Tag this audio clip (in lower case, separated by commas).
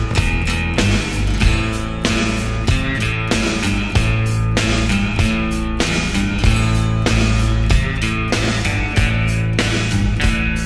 music